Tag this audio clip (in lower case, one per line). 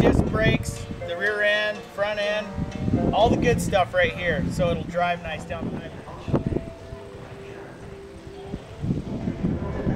speech
music